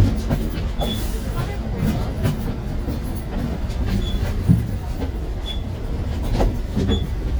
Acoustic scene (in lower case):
bus